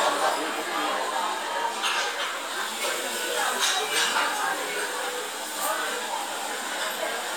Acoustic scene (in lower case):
restaurant